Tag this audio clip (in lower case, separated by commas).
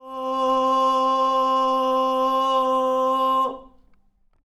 human voice, singing